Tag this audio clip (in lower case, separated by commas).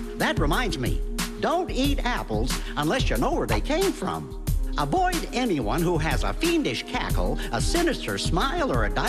speech, music